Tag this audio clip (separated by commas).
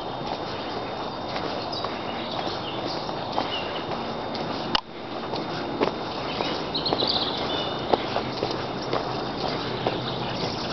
footsteps